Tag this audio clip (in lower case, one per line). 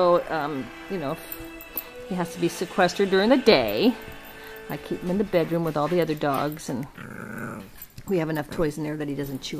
animal
dog
domestic animals
music
growling
speech